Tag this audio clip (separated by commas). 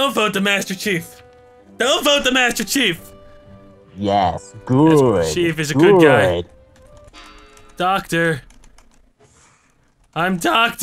Computer keyboard, Music, Speech